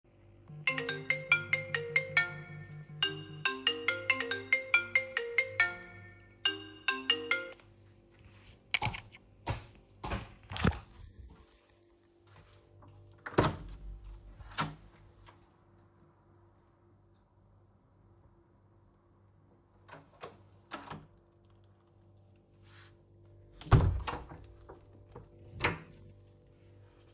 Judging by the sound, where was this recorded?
living room